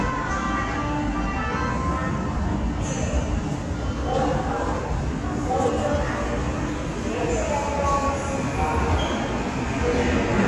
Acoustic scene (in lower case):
subway station